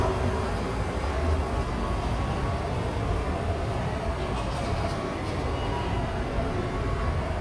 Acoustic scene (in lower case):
subway station